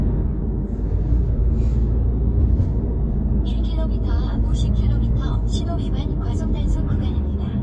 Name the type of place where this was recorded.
car